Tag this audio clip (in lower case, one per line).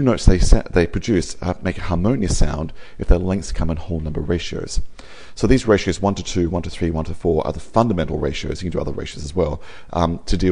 speech